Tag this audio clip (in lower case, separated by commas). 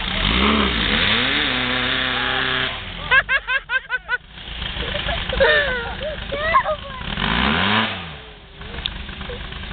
speech, car, auto racing, vehicle